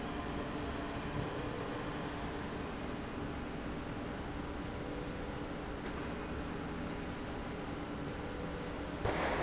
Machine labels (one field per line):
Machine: slide rail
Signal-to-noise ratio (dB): -6 dB